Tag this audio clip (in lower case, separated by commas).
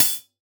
hi-hat, cymbal, musical instrument, percussion, music